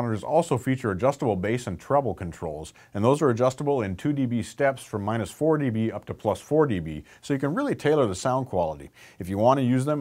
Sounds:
Speech

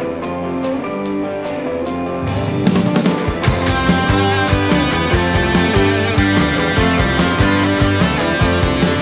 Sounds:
Music, Rock and roll

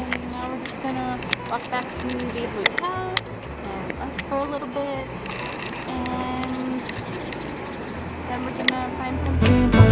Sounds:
Speech, Music

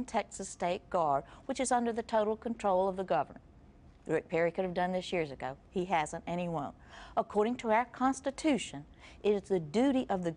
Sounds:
Speech

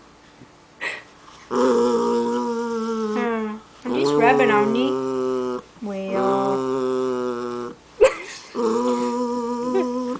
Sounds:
Speech

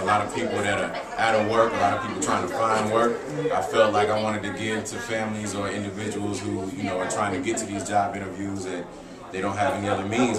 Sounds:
Speech

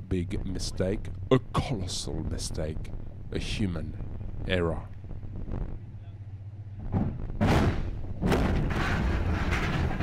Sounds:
Speech

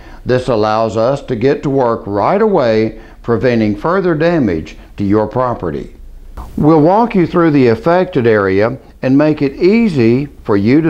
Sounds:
Speech

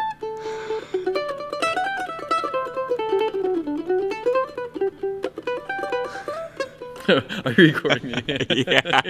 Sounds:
playing mandolin

